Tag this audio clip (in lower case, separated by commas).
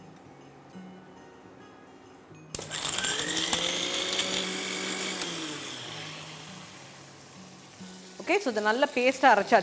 speech, tools, music, inside a small room